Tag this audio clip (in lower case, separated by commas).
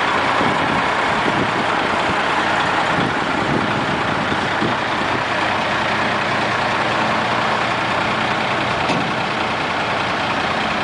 truck, vehicle